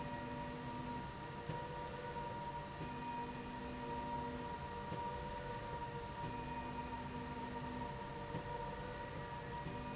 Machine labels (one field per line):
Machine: slide rail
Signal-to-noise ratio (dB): 0 dB